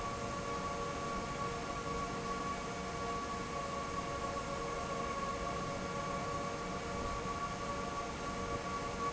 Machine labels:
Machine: fan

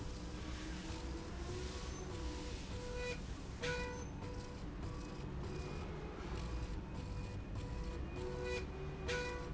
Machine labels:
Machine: slide rail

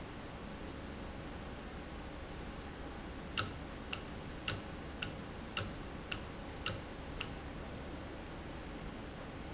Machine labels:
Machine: valve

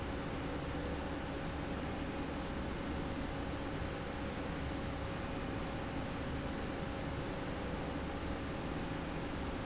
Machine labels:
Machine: slide rail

